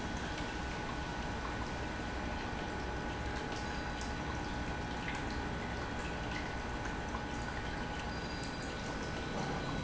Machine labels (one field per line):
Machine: pump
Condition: normal